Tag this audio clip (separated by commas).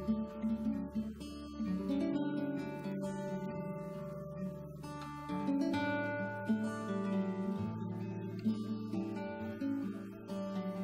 Music, Speech, Acoustic guitar